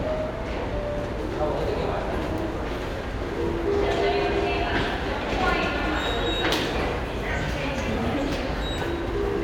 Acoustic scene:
subway station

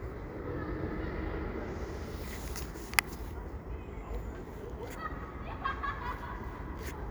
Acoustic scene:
residential area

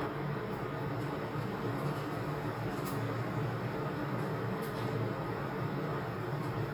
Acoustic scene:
elevator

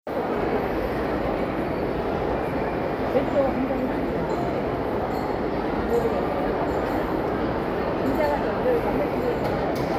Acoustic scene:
crowded indoor space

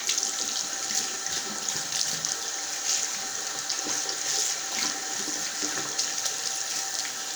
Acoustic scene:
restroom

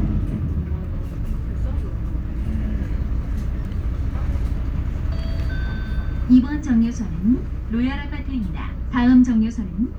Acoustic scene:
bus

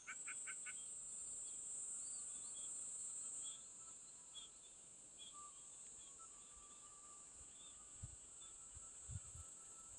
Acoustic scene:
park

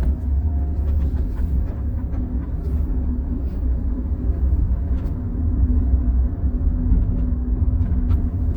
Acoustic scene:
car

